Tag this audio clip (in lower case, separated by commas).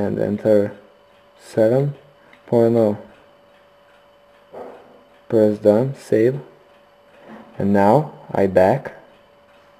inside a small room, speech